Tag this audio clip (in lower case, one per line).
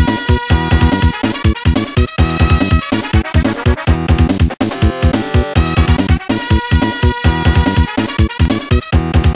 disco
music